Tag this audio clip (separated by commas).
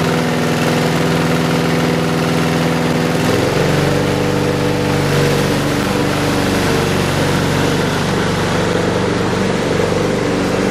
lawn mowing